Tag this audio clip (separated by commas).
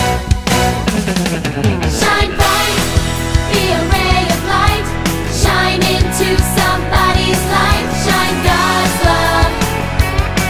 Music, Exciting music